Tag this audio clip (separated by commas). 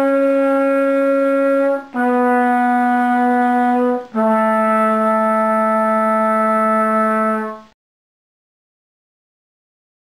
playing trumpet